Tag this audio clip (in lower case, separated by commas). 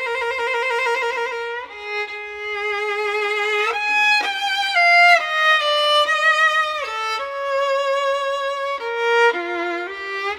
music, musical instrument, violin